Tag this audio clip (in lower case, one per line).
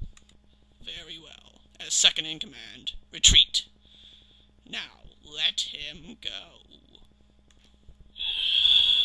speech